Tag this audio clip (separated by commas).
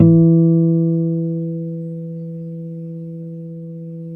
Guitar, Musical instrument, Plucked string instrument, Music, Acoustic guitar